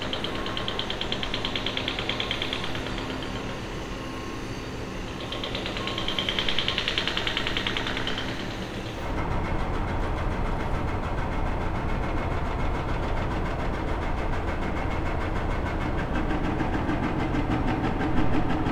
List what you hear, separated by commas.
hoe ram